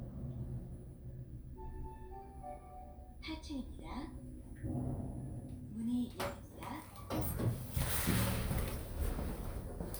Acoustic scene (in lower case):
elevator